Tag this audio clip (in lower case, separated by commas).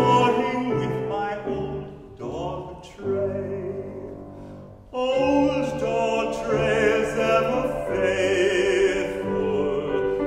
music